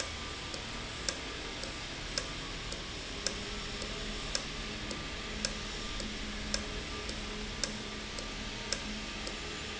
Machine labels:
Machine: valve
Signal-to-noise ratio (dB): -6 dB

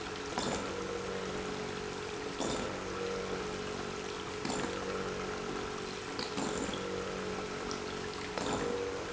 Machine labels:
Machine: pump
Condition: abnormal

